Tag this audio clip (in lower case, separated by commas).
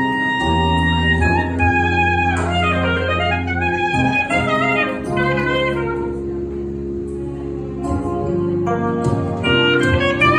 playing clarinet